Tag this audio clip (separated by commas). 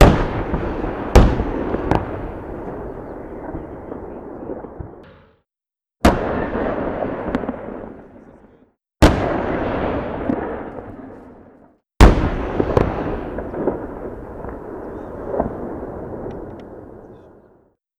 Gunshot, Explosion